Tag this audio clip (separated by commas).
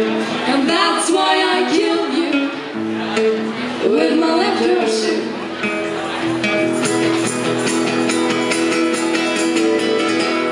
Music